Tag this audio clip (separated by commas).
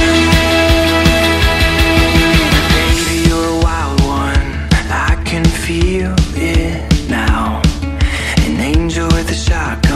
Independent music, Music